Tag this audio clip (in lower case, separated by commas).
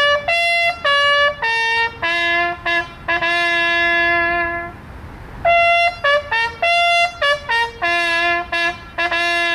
music